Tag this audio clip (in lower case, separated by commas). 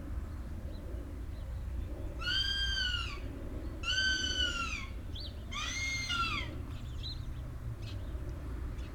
wild animals, animal, bird